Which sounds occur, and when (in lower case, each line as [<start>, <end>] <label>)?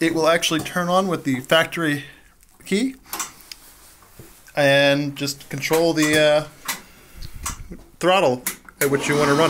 [0.00, 2.15] man speaking
[0.01, 9.45] background noise
[0.59, 0.72] generic impact sounds
[2.00, 2.27] breathing
[2.64, 2.97] man speaking
[3.03, 3.33] generic impact sounds
[3.24, 3.45] breathing
[3.53, 4.46] surface contact
[4.15, 4.34] generic impact sounds
[4.54, 6.47] man speaking
[5.97, 6.44] generic impact sounds
[6.57, 6.82] generic impact sounds
[6.81, 7.40] breathing
[7.18, 7.77] wind noise (microphone)
[7.42, 7.68] generic impact sounds
[7.98, 8.41] man speaking
[8.39, 8.69] generic impact sounds
[8.80, 9.45] man speaking
[8.82, 9.45] lawn mower